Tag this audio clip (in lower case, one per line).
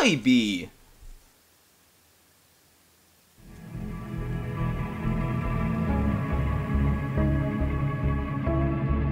inside a small room
speech
music